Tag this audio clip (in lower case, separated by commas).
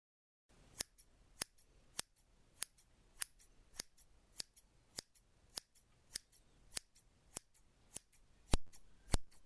scissors, home sounds